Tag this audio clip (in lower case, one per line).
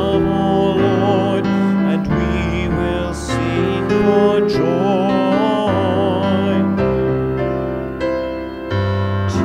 music